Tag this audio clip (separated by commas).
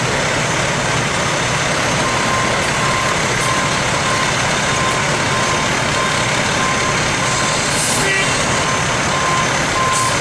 Speech